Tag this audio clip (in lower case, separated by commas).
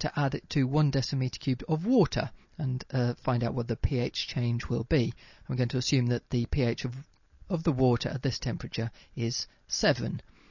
speech